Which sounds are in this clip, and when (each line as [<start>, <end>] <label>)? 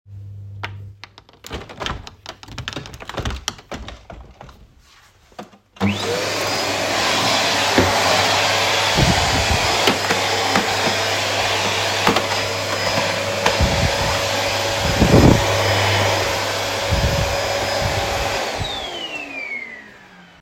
[0.57, 4.95] window
[5.76, 20.42] vacuum cleaner